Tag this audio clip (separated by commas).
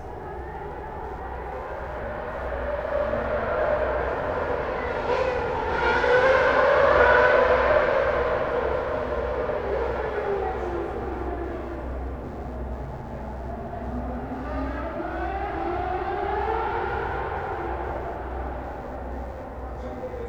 Motor vehicle (road), Car, Vehicle, auto racing